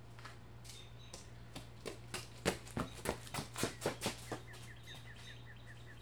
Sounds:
run

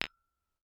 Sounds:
glass
tap

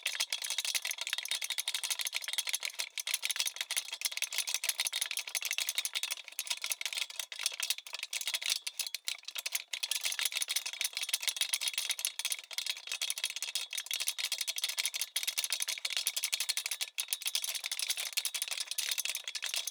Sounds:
rattle

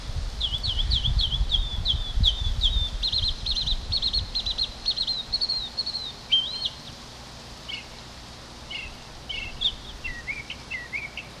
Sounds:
bird
bird vocalization
animal
wild animals

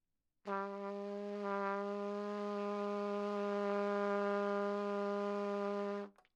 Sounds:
trumpet
brass instrument
musical instrument
music

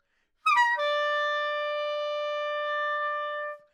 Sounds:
music
woodwind instrument
musical instrument

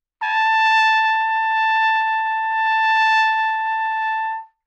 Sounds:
trumpet
musical instrument
music
brass instrument

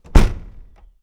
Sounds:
car
motor vehicle (road)
vehicle

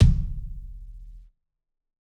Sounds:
bass drum
percussion
drum
musical instrument
music

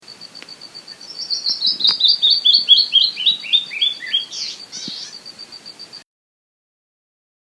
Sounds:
animal
bird vocalization
bird
wild animals

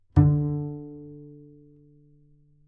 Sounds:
musical instrument
music
bowed string instrument

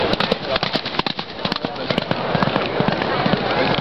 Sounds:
livestock
animal

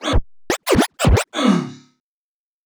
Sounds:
music
musical instrument
scratching (performance technique)

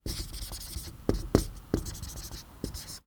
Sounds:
writing
domestic sounds

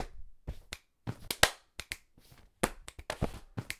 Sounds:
hands
clapping

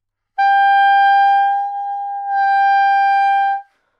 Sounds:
musical instrument
woodwind instrument
music

